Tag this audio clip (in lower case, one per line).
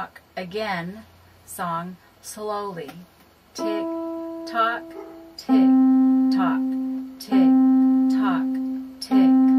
speech
music